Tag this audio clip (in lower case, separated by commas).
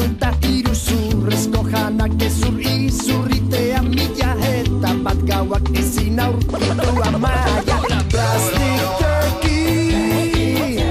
music, reggae